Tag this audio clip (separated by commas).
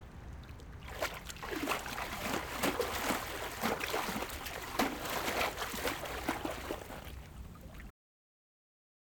splatter, Liquid